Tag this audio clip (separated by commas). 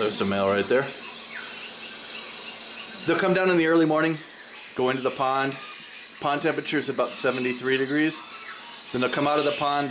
Speech